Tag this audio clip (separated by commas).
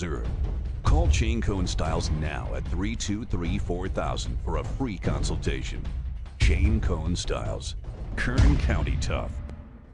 Music, Speech